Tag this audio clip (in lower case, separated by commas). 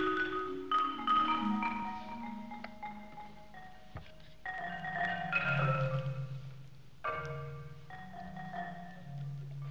music, percussion